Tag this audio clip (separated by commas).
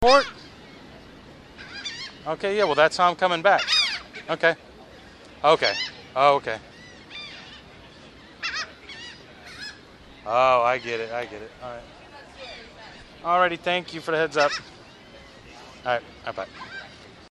Animal, Bird, Wild animals, Gull